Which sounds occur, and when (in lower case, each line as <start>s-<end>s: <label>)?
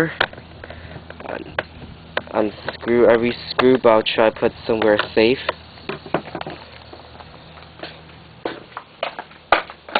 0.0s-0.3s: generic impact sounds
0.0s-9.9s: mechanisms
1.2s-1.6s: man speaking
1.4s-1.7s: generic impact sounds
2.1s-5.4s: generic impact sounds
2.2s-5.6s: man speaking
5.8s-6.6s: generic impact sounds
7.7s-7.8s: generic impact sounds
8.4s-8.6s: generic impact sounds
9.0s-9.2s: generic impact sounds
9.4s-9.7s: generic impact sounds
9.8s-9.9s: generic impact sounds